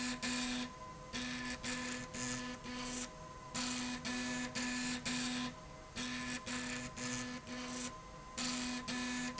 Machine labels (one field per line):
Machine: slide rail